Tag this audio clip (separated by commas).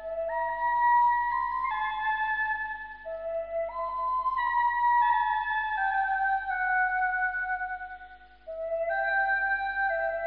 Music, Musical instrument, woodwind instrument, Flute